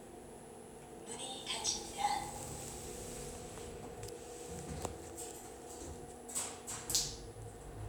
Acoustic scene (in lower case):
elevator